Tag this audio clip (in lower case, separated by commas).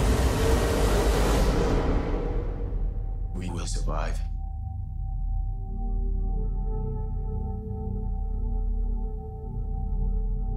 ambient music, music, speech